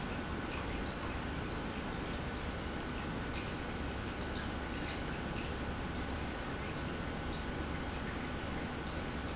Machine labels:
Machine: pump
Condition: normal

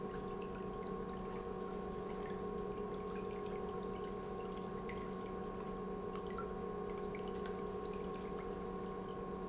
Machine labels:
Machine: pump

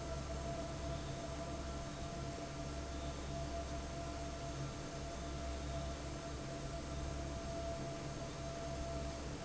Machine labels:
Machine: fan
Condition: normal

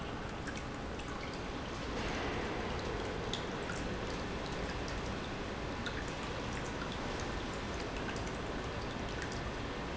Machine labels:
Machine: pump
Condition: normal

